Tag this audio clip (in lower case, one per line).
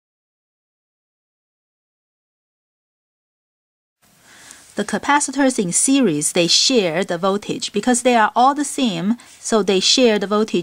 speech